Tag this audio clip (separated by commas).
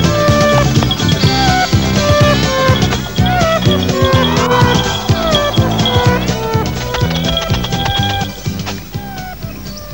Bird vocalization, Music, Chirp, Environmental noise